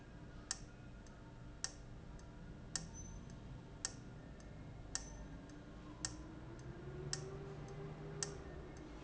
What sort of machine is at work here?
valve